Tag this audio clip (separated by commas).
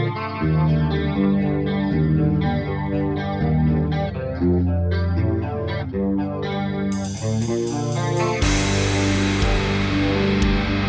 Electric guitar, Plucked string instrument, Music, Musical instrument